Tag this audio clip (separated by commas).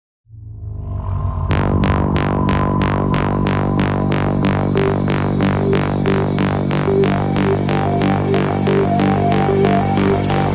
Music, Sound effect